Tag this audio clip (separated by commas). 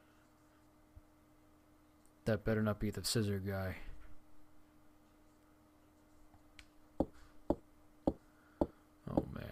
Speech